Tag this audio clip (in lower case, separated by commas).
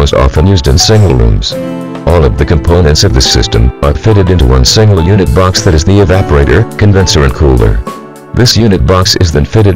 speech, music